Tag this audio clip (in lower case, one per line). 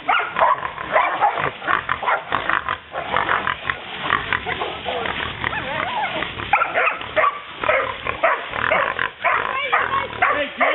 animal
pig
dog
domestic animals